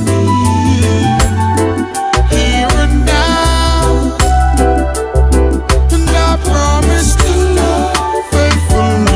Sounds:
music

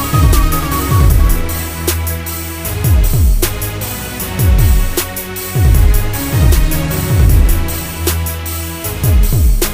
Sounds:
music
funk

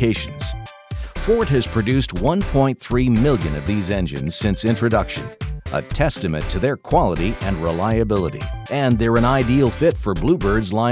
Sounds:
speech
music

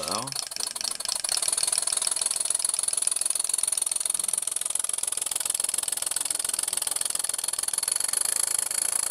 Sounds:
idling
medium engine (mid frequency)

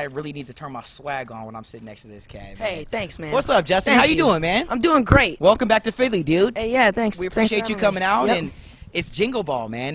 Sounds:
speech

